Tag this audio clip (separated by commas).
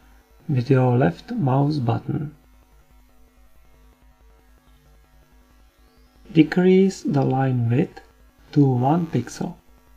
Speech